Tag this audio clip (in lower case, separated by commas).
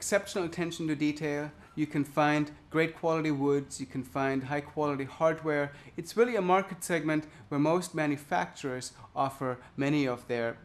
speech